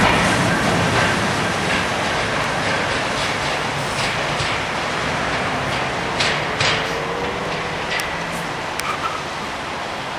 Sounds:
rail transport, clickety-clack, train, railroad car

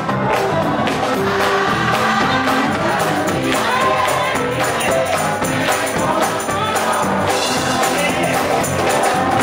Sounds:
music, jingle bell

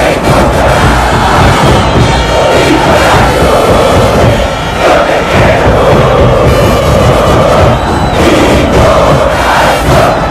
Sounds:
music, speech

